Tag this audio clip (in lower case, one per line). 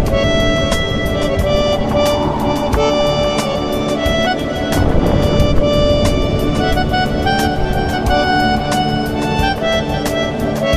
music